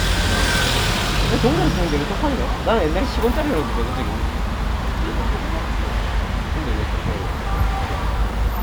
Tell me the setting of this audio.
street